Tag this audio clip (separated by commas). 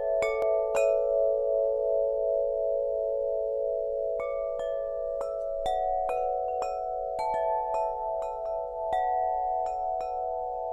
wind chime